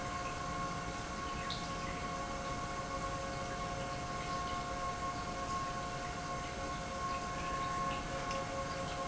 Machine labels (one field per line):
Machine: pump